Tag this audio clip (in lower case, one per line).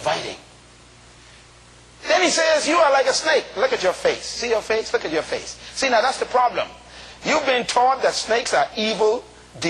speech